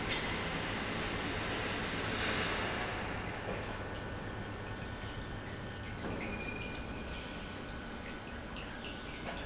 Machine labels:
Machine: pump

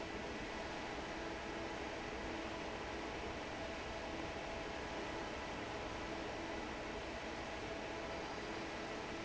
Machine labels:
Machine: fan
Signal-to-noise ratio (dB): 6 dB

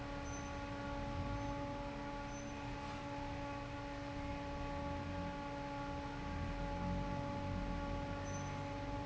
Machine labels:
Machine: fan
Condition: normal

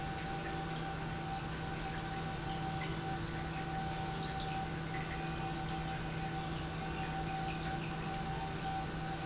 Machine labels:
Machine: pump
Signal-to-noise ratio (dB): -6 dB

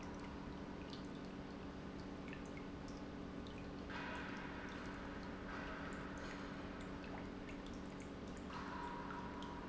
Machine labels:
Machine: pump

